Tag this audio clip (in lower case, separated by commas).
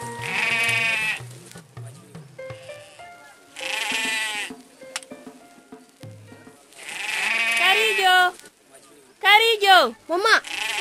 speech, music